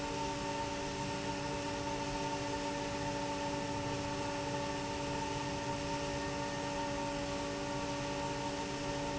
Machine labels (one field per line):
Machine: fan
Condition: abnormal